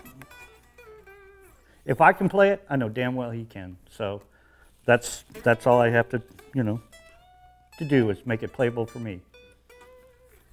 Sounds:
strum, musical instrument, electric guitar, guitar, music, plucked string instrument, speech

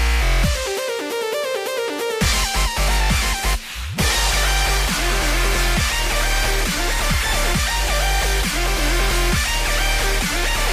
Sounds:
dubstep, music, electronic music

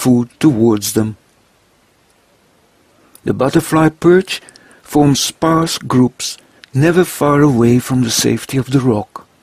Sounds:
speech

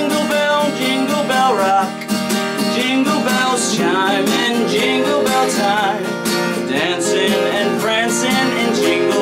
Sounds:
music

